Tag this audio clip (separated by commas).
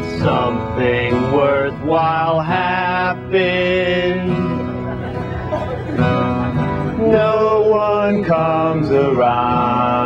Music